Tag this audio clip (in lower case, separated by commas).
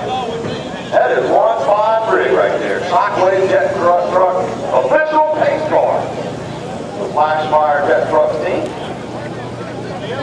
speech, vehicle